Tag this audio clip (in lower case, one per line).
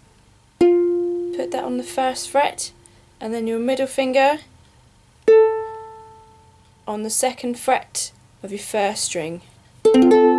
music
speech